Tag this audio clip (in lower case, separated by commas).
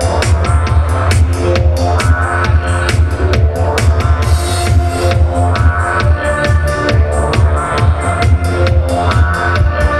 music